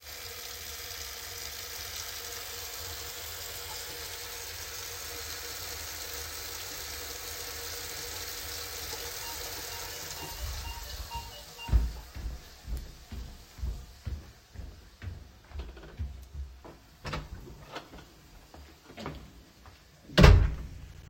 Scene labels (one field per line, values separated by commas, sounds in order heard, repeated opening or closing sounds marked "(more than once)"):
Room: kitchen, hallway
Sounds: running water, bell ringing, footsteps, door